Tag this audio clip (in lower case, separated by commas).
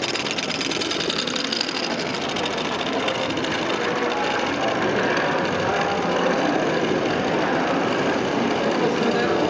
speech, medium engine (mid frequency), engine